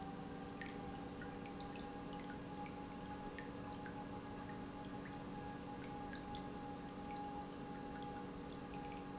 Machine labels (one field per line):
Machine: pump